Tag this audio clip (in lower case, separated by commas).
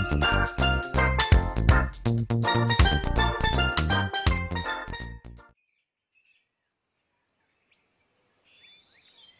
environmental noise, music